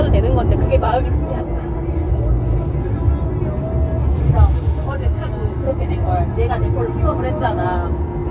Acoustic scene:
car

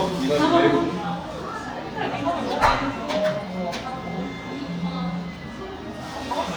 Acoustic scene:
cafe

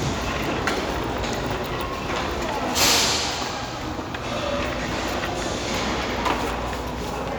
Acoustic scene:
crowded indoor space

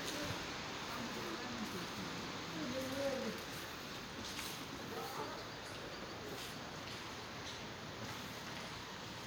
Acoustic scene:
residential area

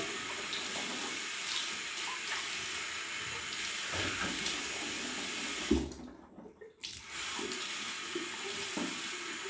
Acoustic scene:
restroom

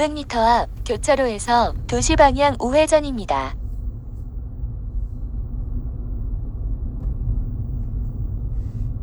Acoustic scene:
car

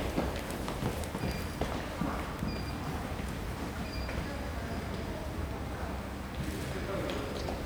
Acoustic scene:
elevator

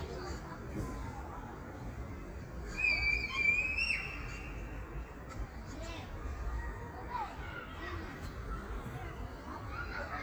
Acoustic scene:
park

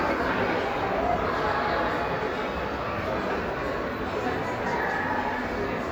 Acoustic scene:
crowded indoor space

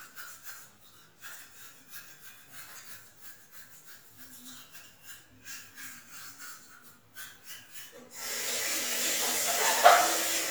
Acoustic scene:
restroom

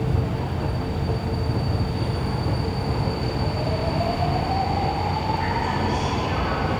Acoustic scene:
subway station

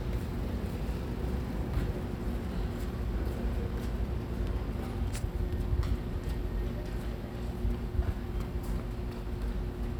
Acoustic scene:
residential area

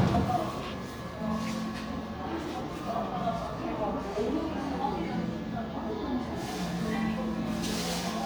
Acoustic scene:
crowded indoor space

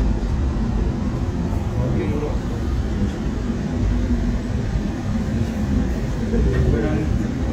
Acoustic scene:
subway train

